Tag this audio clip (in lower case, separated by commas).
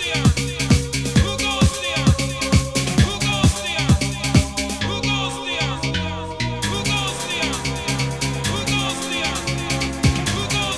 music